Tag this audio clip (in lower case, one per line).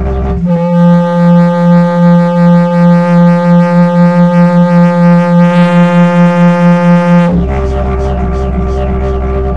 music
musical instrument
didgeridoo